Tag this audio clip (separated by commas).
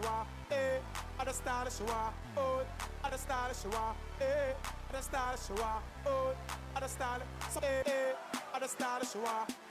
Music